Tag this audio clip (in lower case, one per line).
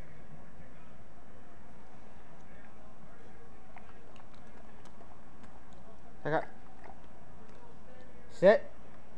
speech